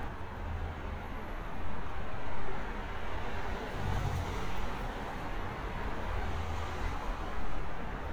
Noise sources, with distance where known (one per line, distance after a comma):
engine of unclear size, near